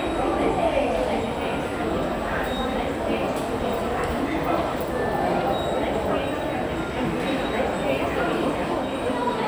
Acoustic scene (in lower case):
subway station